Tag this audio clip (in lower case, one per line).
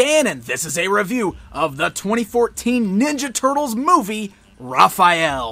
speech